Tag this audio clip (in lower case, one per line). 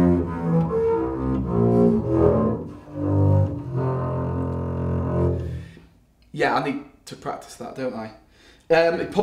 playing double bass